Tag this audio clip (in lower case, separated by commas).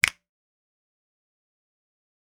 finger snapping, hands